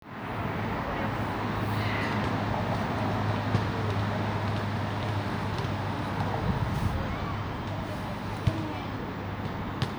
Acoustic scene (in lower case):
residential area